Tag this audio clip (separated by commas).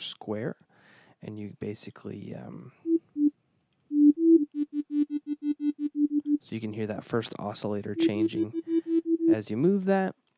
Speech, Synthesizer